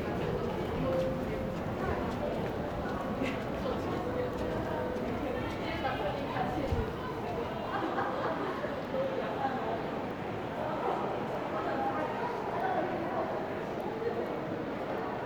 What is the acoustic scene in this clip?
crowded indoor space